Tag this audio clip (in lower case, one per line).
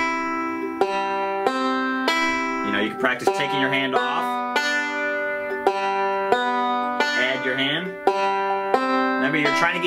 playing banjo